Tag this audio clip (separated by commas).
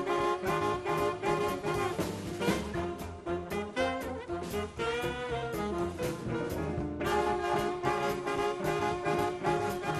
Jazz, Music